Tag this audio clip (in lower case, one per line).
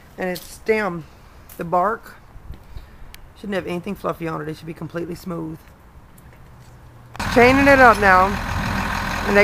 speech